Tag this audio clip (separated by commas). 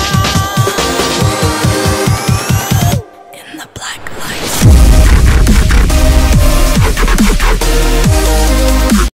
Music, Squish